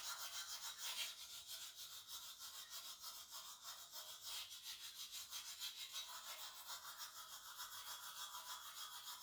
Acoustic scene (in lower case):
restroom